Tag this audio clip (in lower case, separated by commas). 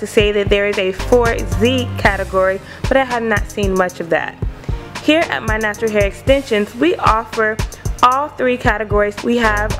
speech, music